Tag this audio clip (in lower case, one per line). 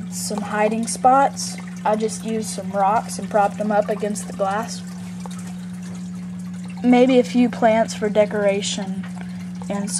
speech